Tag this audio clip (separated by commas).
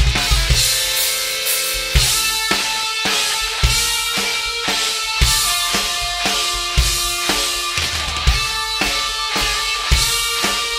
Heavy metal, Drum, Music, Musical instrument, Drum kit